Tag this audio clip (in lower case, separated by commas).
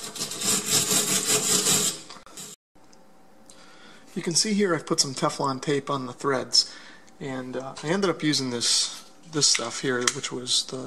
filing (rasp), rub